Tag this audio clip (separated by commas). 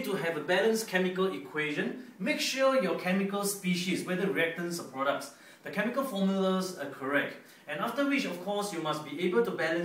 Speech